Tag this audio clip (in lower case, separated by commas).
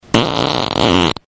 fart